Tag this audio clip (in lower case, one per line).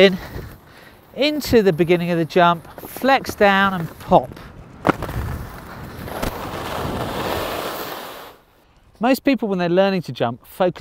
skiing